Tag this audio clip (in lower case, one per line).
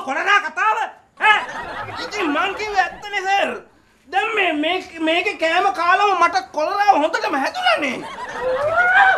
people sniggering
speech
snicker